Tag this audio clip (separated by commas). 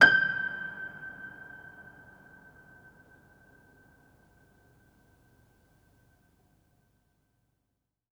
Piano, Keyboard (musical), Musical instrument, Music